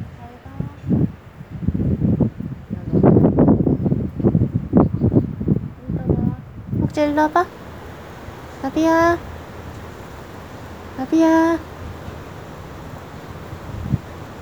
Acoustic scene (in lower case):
residential area